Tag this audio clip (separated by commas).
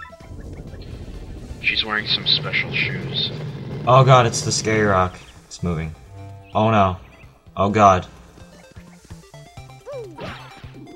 Music, Speech